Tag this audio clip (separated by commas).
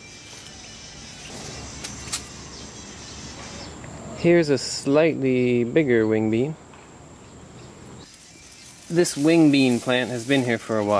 Speech, Music